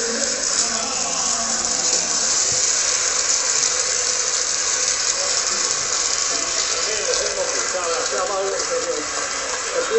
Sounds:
speech

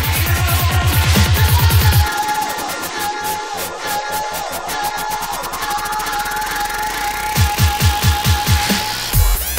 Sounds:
music
dubstep

